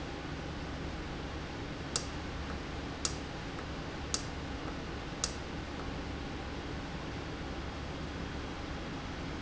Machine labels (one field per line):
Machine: valve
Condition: normal